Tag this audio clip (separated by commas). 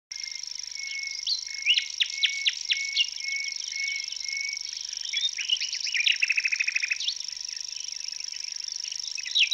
Bird, Chirp, bird call